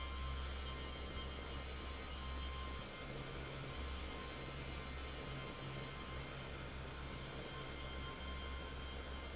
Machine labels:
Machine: fan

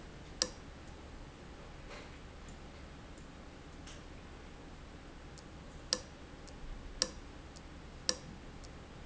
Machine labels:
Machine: valve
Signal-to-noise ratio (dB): 6 dB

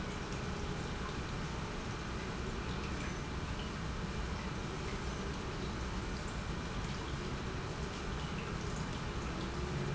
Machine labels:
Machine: pump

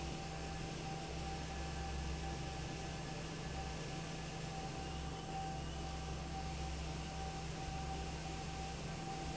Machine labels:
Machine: fan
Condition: normal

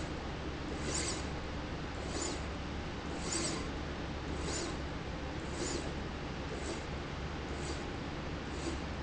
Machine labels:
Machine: slide rail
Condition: abnormal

